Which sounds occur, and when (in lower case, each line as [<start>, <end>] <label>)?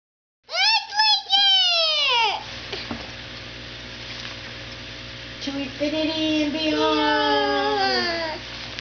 [0.42, 8.78] mechanisms
[2.69, 3.01] breathing
[4.64, 4.80] tick
[5.39, 8.38] female speech
[6.52, 8.34] child speech
[8.33, 8.77] surface contact